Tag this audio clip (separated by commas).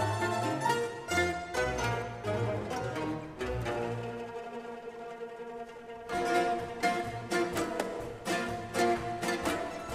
Orchestra